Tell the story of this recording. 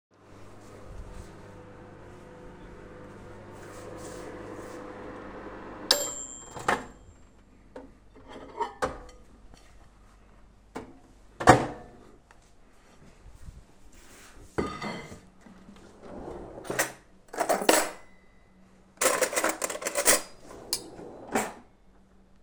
Getting up from the kitchen table to the microwave, turning it off, getting the plate. Settnig the plate down, opening the drawer and get cuttlery, closing the drawer